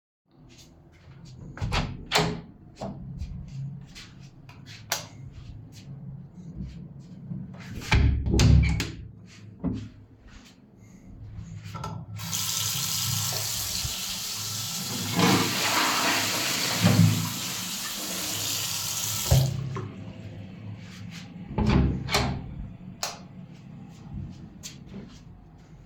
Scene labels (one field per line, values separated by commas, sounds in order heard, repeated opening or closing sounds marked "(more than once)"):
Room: lavatory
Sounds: door (more than once), light switch, running water, toilet flushing